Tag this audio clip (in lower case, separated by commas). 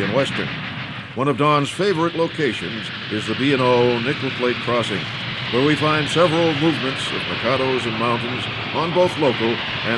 speech